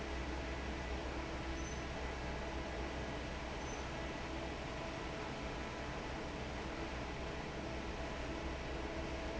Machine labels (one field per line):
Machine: fan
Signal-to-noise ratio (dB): 0 dB